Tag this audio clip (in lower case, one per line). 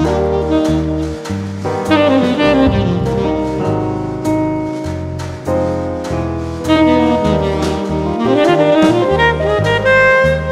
music